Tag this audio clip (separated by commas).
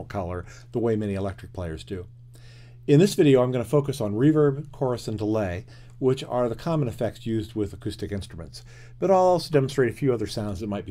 Speech